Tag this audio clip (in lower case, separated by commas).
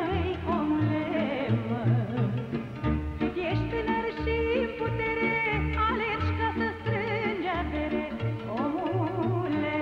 music